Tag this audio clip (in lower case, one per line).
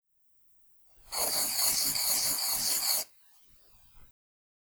writing
domestic sounds